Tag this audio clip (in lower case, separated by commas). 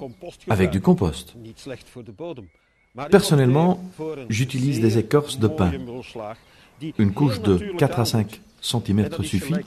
speech